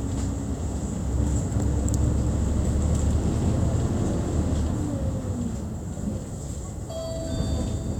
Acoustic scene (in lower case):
bus